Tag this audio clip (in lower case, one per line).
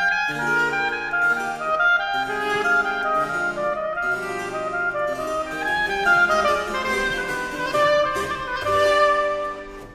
music
musical instrument
harpsichord
clarinet